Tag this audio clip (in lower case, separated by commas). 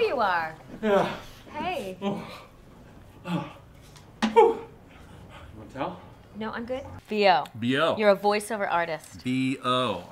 speech